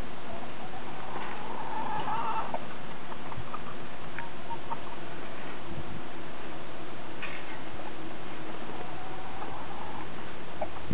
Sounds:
Crowing, Animal

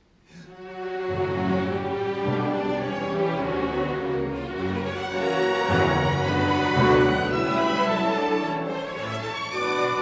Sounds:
Music, fiddle, Musical instrument

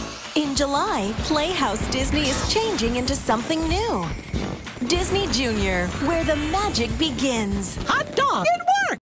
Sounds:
Music, Speech

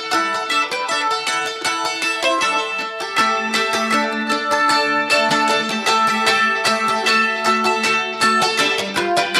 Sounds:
playing mandolin

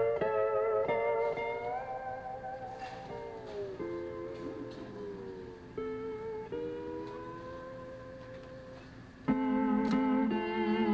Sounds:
playing steel guitar

